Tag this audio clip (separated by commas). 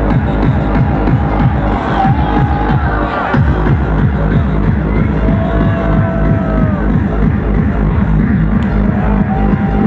Techno, Music, Electronic music